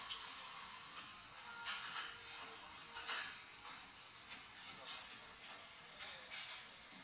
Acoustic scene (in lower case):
cafe